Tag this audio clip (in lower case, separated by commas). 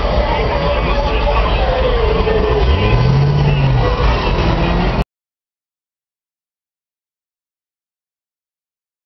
vehicle, speech, car